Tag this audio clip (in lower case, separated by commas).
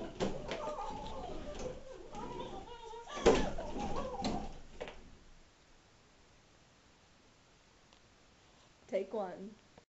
tap, speech